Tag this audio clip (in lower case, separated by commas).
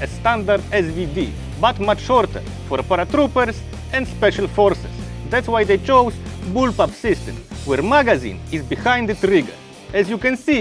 speech, music